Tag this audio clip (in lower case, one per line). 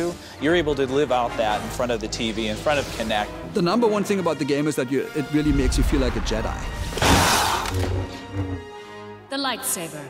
speech
music